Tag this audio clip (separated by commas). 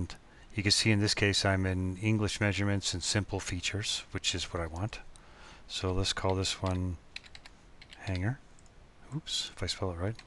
Speech